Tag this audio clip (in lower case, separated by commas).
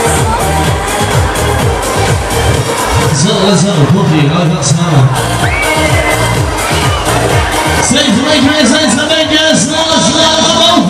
music, speech